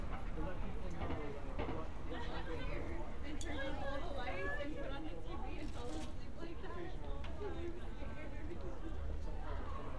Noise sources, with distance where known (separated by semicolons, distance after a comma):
person or small group talking, near